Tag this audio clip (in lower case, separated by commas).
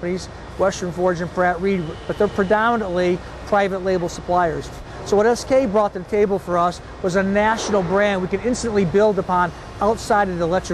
speech